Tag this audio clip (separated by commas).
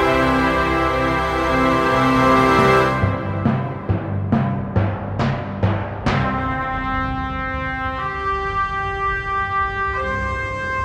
Timpani, Music